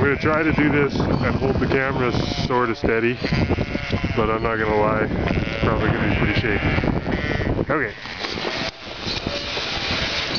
A man speaks and sheep bleat in the background